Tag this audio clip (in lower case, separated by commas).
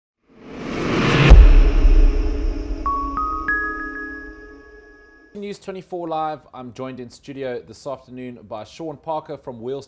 ambient music